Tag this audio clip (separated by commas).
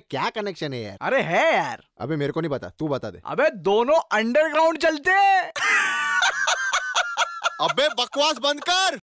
Speech